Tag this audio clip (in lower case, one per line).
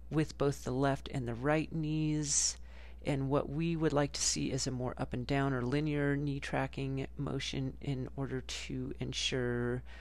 speech